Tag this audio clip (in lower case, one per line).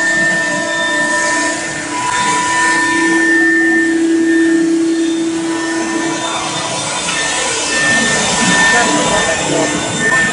speech